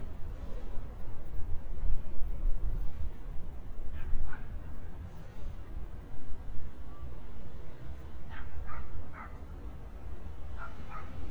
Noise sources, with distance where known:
dog barking or whining, far

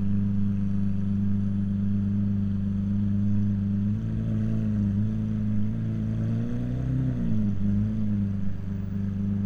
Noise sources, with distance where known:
medium-sounding engine, near

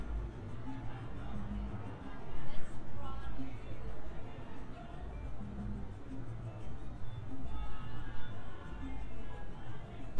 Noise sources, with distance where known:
music from an unclear source, far; person or small group talking, far

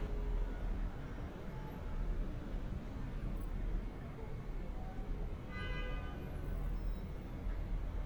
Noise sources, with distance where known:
background noise

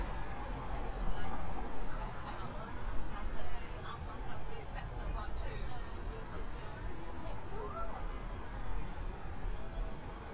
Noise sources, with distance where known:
person or small group talking, near

